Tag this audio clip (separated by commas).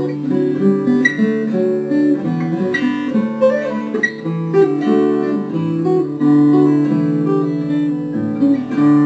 Music, Acoustic guitar, Bowed string instrument, Musical instrument, Plucked string instrument, Guitar